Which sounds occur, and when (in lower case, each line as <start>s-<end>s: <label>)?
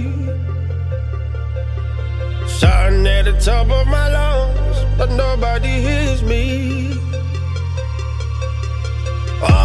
0.0s-9.6s: music
2.5s-4.8s: male singing
5.0s-7.0s: male singing